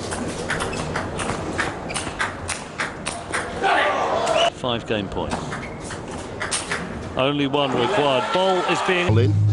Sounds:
playing table tennis

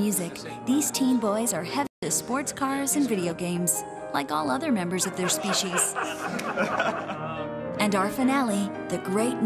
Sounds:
music
chortle

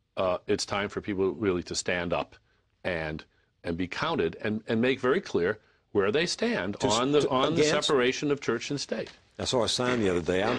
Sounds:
speech

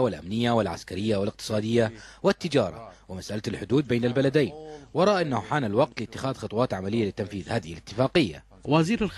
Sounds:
speech

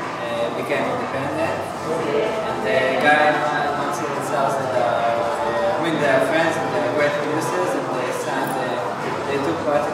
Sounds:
speech
music

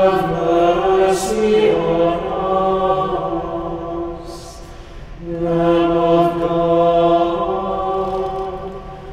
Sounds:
mantra

